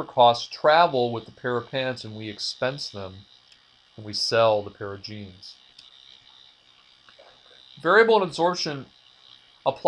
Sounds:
Speech

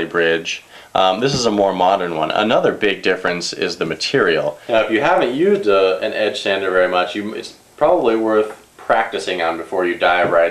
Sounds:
Speech

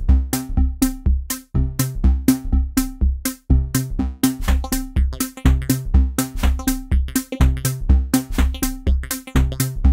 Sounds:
Sampler, Electronic music, Music

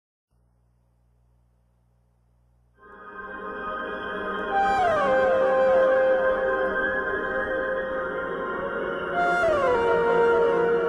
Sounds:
Music

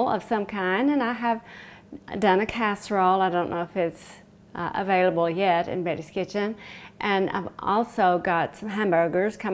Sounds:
Speech

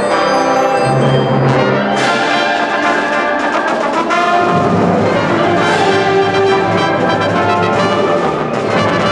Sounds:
Orchestra, Music

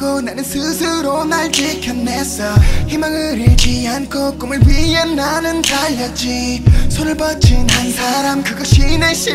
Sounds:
Music

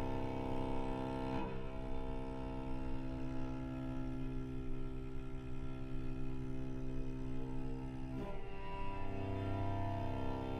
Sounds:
Cello, Music, Musical instrument

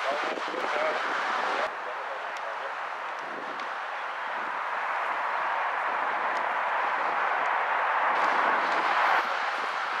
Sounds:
Vehicle, Speech

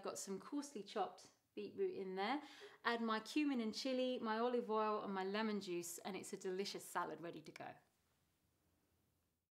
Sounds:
Speech

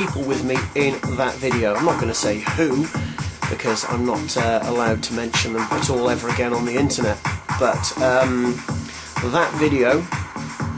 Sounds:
Music, Speech

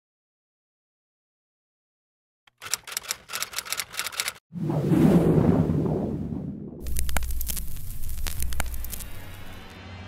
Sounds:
Music

